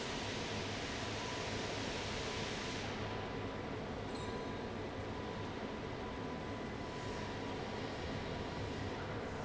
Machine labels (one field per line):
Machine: fan